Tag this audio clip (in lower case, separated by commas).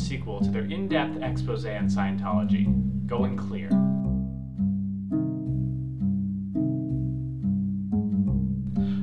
vibraphone, music, speech